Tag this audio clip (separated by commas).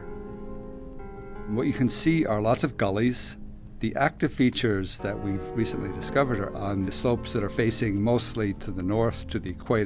Speech, Music